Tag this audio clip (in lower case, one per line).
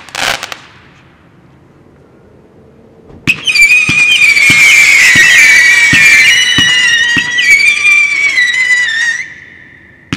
fireworks